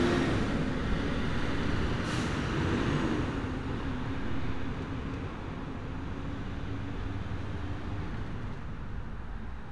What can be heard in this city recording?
large-sounding engine